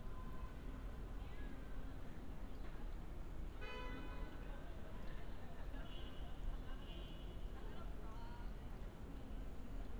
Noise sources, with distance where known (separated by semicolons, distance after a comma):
car horn; person or small group talking